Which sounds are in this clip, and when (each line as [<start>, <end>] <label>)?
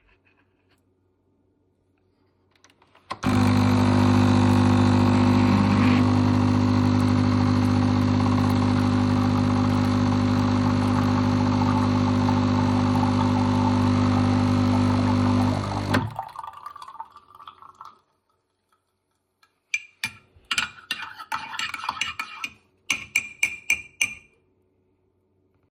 [3.00, 16.18] coffee machine
[16.26, 17.97] running water
[19.66, 24.29] cutlery and dishes